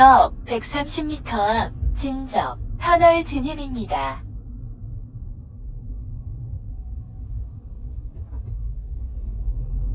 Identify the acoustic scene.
car